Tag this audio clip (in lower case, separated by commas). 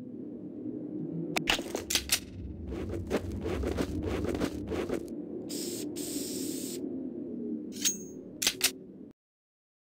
spray